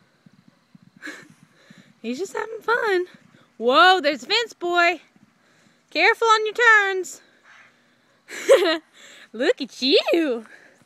Women speaking loudly followed by laughter